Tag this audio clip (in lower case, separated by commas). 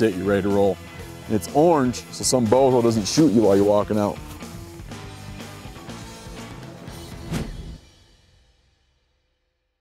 music, speech